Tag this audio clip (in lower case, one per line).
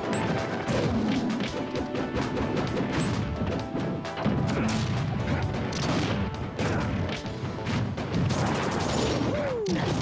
whack